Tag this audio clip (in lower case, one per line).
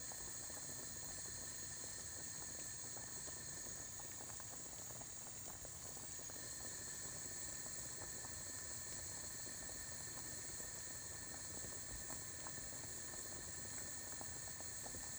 liquid
boiling